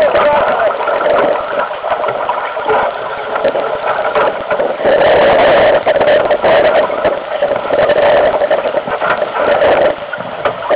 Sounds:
sailing ship, Boat, Speech

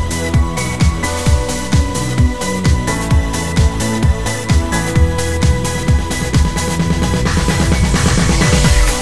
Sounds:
Music

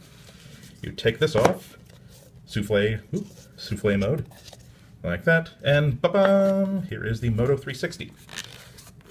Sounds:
inside a small room, Speech

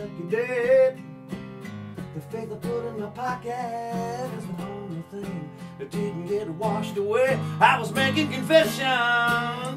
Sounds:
Music

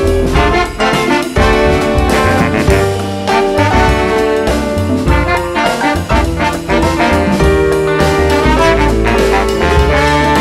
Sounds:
Saxophone, playing saxophone, Brass instrument

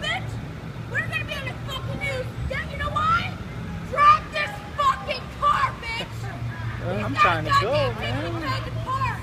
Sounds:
Vehicle, Speech

